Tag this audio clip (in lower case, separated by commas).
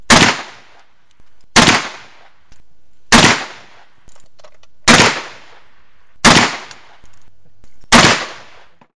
gunfire, explosion